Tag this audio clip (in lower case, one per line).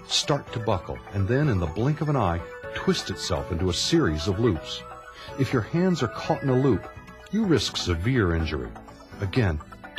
music
speech